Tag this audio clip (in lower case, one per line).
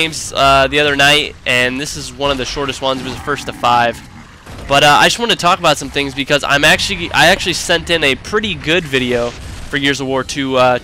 speech